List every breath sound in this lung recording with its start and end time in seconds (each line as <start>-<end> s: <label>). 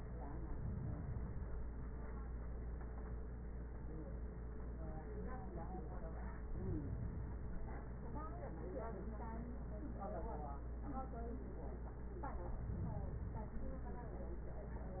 No breath sounds were labelled in this clip.